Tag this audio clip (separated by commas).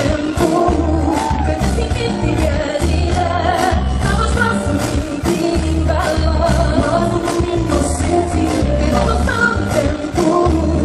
Music